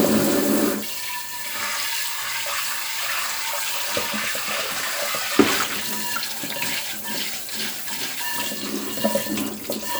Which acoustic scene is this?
kitchen